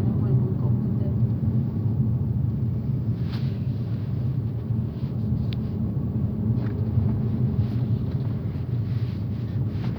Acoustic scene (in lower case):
car